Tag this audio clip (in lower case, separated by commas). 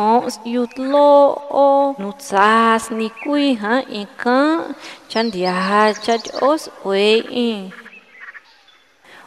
speech, chirp